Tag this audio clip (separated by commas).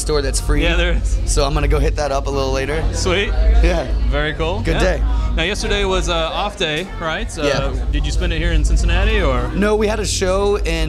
Speech